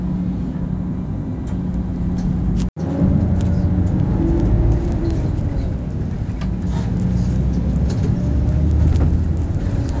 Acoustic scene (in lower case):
bus